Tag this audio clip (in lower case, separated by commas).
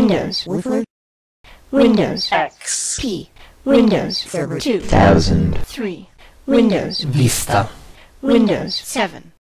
speech